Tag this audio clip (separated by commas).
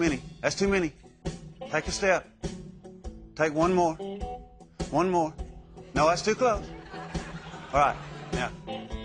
Speech, Music